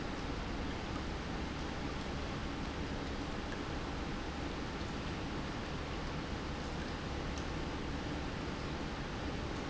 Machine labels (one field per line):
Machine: pump